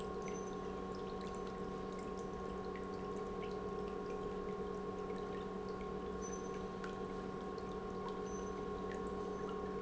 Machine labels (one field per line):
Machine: pump